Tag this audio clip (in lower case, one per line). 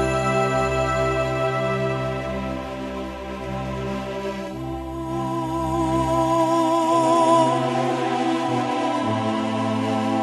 keyboard (musical)
musical instrument
music
electronic organ